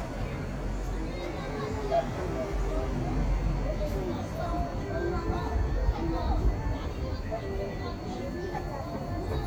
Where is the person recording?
on a street